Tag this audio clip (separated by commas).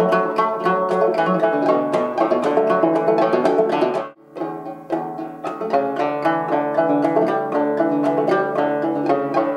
Music, Musical instrument